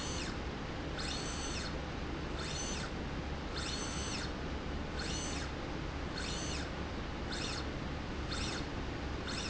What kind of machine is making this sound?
slide rail